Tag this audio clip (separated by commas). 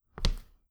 footsteps